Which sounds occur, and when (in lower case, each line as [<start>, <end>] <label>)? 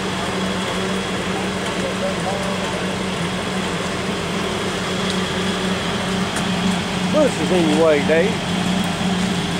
[0.00, 9.55] medium engine (mid frequency)
[1.62, 1.82] generic impact sounds
[1.62, 3.10] human sounds
[2.33, 2.72] generic impact sounds
[4.23, 9.55] rustle
[4.98, 5.32] generic impact sounds
[6.26, 6.57] generic impact sounds
[7.09, 8.29] male speech
[7.59, 7.94] generic impact sounds
[9.07, 9.35] generic impact sounds